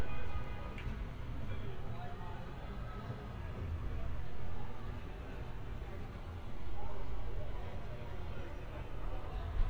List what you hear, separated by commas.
car horn, unidentified human voice